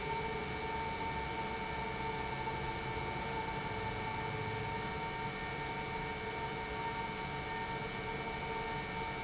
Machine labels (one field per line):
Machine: pump